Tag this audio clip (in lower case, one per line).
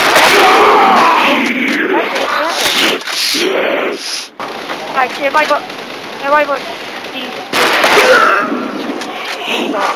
speech